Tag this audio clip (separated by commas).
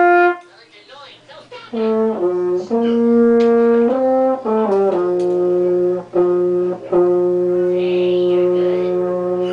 Brass instrument, French horn, Music, Speech, Musical instrument